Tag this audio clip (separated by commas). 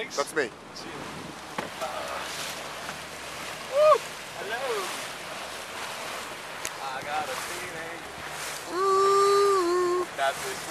Wind